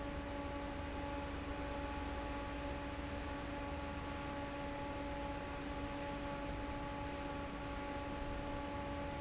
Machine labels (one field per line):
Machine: fan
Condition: normal